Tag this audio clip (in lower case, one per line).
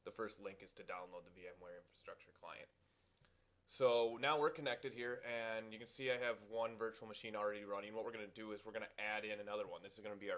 speech